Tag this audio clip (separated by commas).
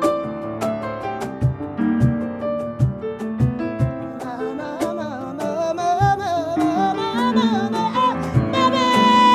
Music